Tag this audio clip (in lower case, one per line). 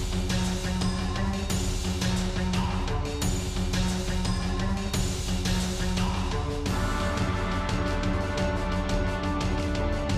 exciting music
music